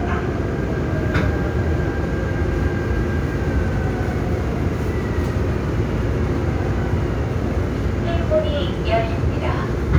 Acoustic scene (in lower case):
subway train